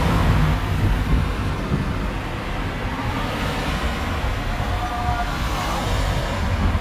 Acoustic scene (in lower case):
street